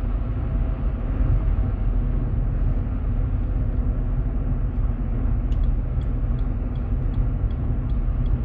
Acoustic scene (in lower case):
car